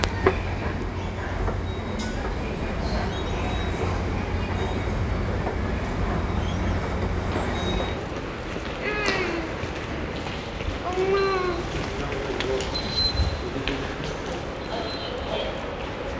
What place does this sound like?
subway station